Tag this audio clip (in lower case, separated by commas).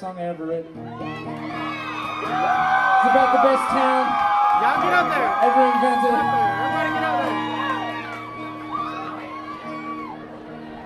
music, speech